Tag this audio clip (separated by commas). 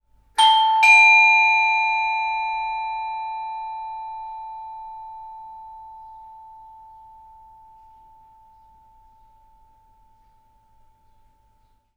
Door, Bell, home sounds, Alarm, Doorbell